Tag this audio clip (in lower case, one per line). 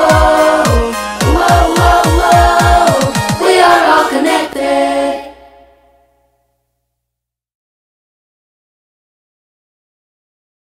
music